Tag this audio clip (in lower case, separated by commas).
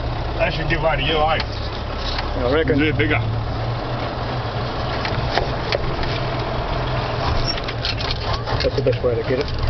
mechanisms